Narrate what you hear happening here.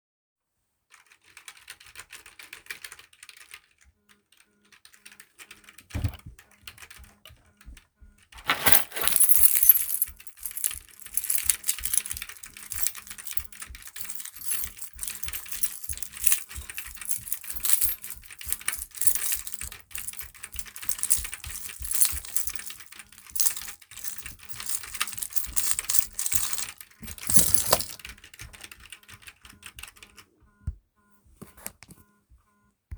Typing on keyboard while phone notification and footsteps occur with keys.